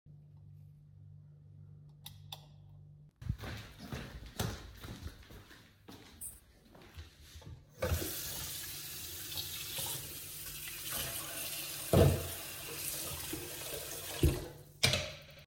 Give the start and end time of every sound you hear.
[2.02, 2.46] light switch
[3.16, 7.60] footsteps
[7.77, 12.01] running water
[14.83, 15.17] cutlery and dishes

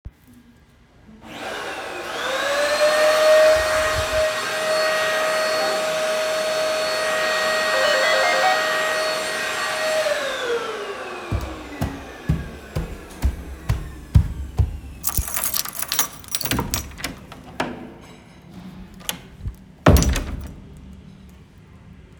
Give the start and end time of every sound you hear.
[1.14, 17.72] vacuum cleaner
[7.59, 8.79] bell ringing
[11.22, 15.00] footsteps
[15.01, 16.92] keys
[16.45, 20.65] door

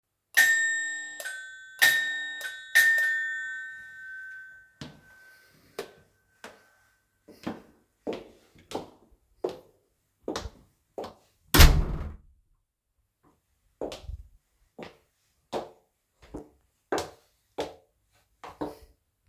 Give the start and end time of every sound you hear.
[0.32, 5.59] bell ringing
[7.37, 11.16] footsteps
[11.51, 12.19] door
[13.77, 18.78] footsteps

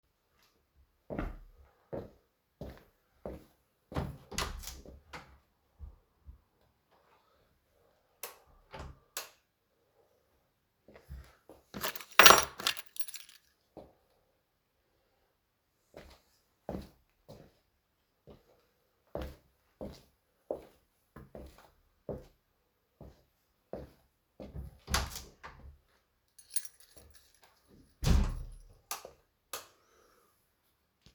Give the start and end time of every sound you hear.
[1.04, 4.23] footsteps
[4.30, 5.32] door
[8.10, 8.50] light switch
[9.04, 9.39] light switch
[10.78, 11.74] footsteps
[11.73, 13.46] keys
[13.63, 14.06] footsteps
[15.90, 24.79] footsteps
[24.79, 25.75] door
[26.31, 28.70] keys
[27.99, 28.69] door
[28.74, 29.23] light switch
[29.42, 29.76] light switch

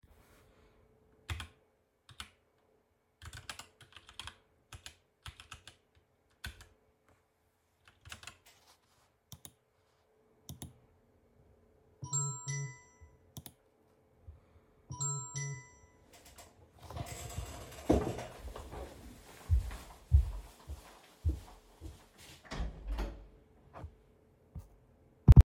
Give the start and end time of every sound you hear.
[1.23, 1.50] keyboard typing
[2.04, 2.31] keyboard typing
[3.19, 8.44] keyboard typing
[12.03, 13.26] phone ringing
[14.90, 16.11] phone ringing
[19.46, 22.04] footsteps
[22.49, 23.14] door

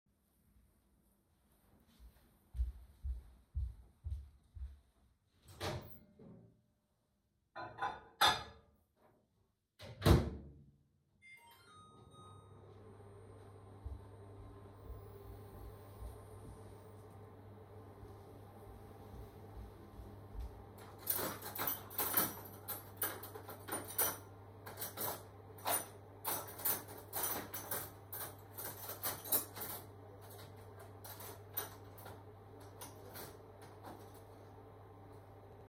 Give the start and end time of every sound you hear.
[2.28, 5.27] footsteps
[5.37, 6.39] microwave
[7.48, 8.96] cutlery and dishes
[9.55, 35.63] microwave
[11.21, 13.16] phone ringing
[20.95, 34.06] cutlery and dishes

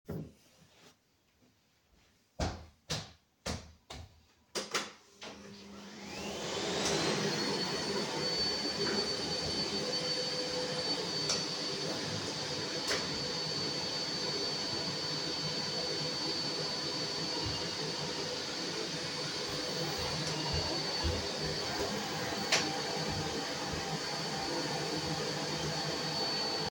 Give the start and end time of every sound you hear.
[5.91, 26.70] vacuum cleaner
[17.10, 18.79] phone ringing
[19.71, 21.73] phone ringing

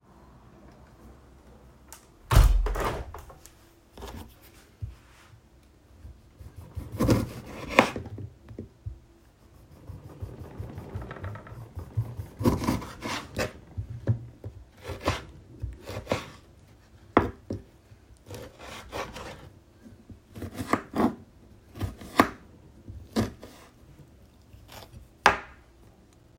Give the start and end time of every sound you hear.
[1.91, 3.61] window
[6.47, 8.60] cutlery and dishes
[12.27, 13.64] cutlery and dishes
[14.84, 16.48] cutlery and dishes
[16.95, 23.61] cutlery and dishes
[24.69, 25.62] cutlery and dishes

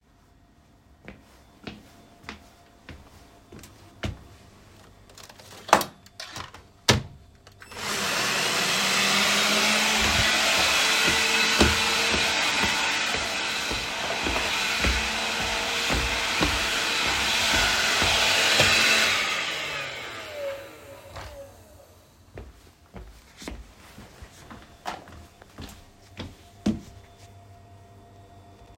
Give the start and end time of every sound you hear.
[0.65, 4.81] footsteps
[7.50, 22.63] vacuum cleaner
[9.71, 19.35] footsteps
[22.19, 27.66] footsteps

